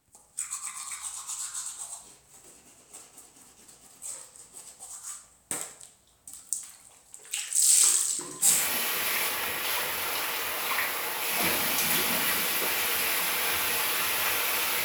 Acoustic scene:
restroom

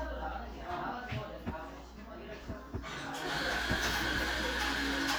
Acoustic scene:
crowded indoor space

